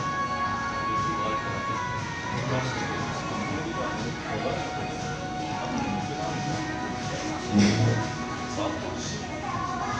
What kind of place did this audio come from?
crowded indoor space